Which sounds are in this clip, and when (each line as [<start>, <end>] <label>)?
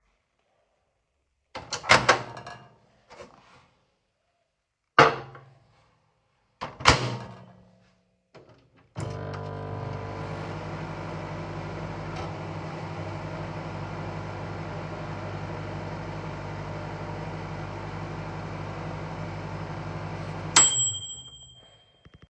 [1.48, 2.78] microwave
[4.90, 5.46] cutlery and dishes
[6.43, 22.24] microwave